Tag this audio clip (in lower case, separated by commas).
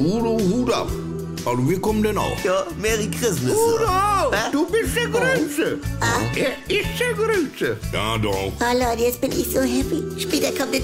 music, speech